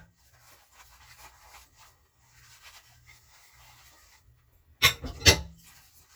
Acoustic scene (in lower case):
kitchen